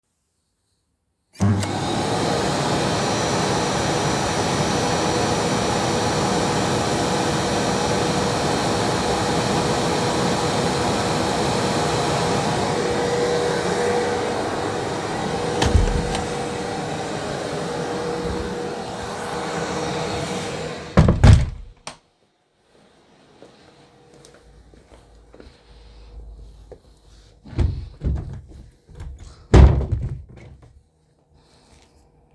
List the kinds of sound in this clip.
vacuum cleaner, door, footsteps, wardrobe or drawer